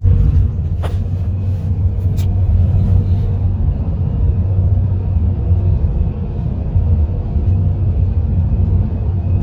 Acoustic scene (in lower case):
car